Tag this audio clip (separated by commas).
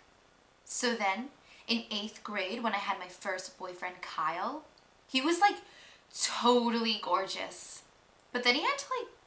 Speech